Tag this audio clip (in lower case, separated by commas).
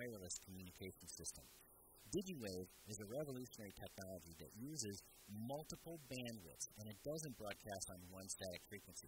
speech